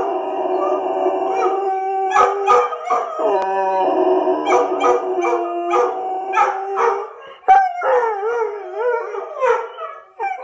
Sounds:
dog howling

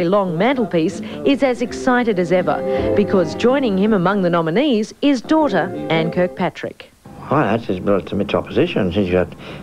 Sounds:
Speech, Music

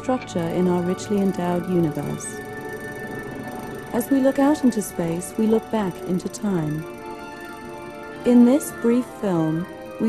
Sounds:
Music, Speech

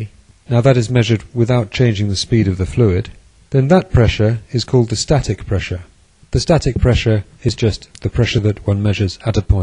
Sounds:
Speech

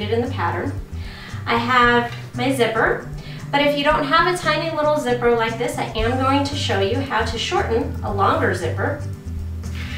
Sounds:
Speech, Music

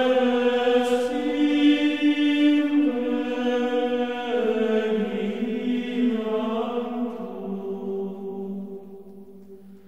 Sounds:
Music

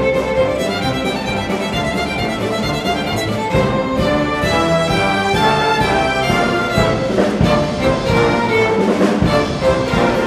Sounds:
Musical instrument, Violin, Orchestra, Music, Bowed string instrument

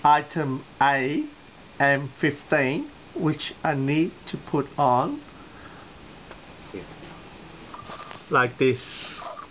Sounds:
Speech

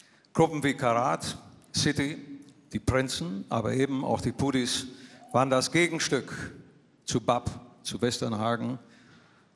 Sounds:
Speech

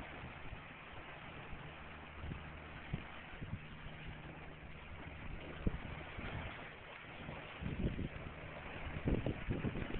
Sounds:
sailing ship, sailing

